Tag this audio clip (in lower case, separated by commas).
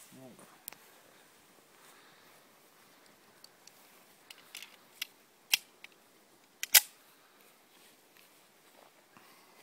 outside, rural or natural, speech